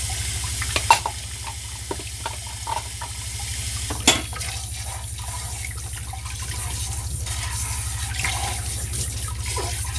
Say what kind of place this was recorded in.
kitchen